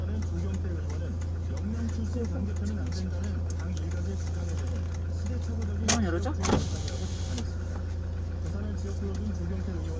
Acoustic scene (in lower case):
car